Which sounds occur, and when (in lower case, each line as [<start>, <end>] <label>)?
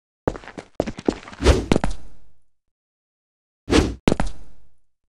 [0.24, 0.73] background noise
[0.25, 0.34] footsteps
[0.40, 0.49] footsteps
[0.54, 0.67] footsteps
[0.77, 2.51] background noise
[0.77, 0.86] footsteps
[0.95, 1.09] footsteps
[1.16, 1.32] footsteps
[1.35, 1.68] sound effect
[1.67, 1.95] footsteps
[3.67, 3.98] sound effect
[4.04, 4.31] footsteps
[4.04, 4.85] background noise